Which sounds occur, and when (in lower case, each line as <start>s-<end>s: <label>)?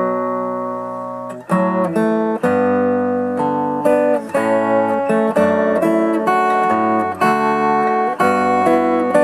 0.0s-9.2s: music